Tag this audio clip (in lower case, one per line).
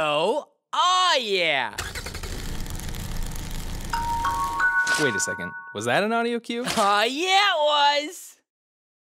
music
car
speech